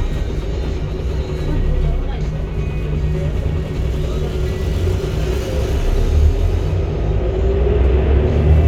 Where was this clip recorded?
on a bus